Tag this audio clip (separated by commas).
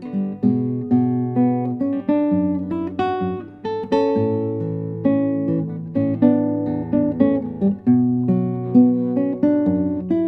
Music, Musical instrument, Guitar, Plucked string instrument, Strum, Acoustic guitar